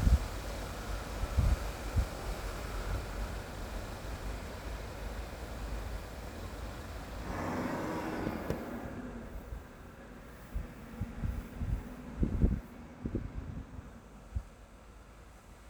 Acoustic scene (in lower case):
street